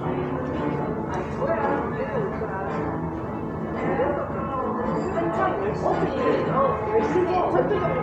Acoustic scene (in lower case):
cafe